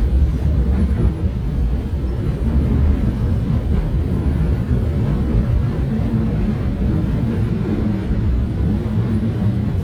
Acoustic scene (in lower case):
subway train